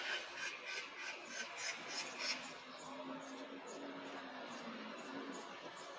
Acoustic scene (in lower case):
park